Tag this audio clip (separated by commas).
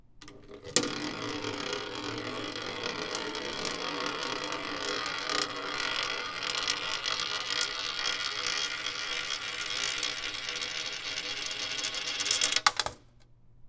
Coin (dropping), home sounds